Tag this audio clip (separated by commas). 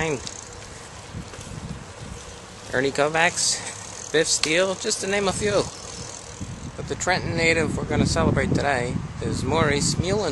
outside, rural or natural, Speech